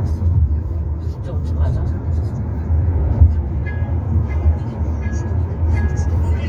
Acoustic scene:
car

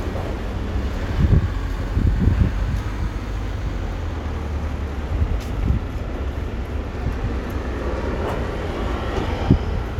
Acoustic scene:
street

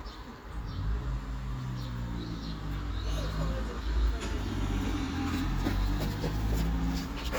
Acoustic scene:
street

